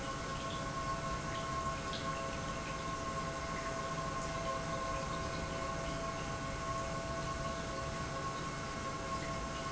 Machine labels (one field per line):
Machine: pump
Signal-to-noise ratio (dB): -6 dB